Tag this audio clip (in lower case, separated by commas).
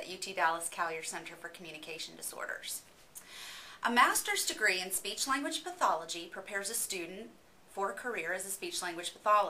speech, monologue, female speech